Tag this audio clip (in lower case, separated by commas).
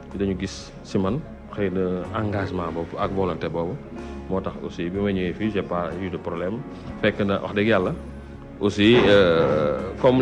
speech, music